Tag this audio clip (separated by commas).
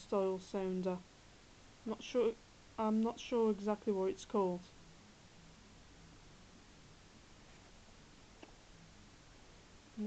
Speech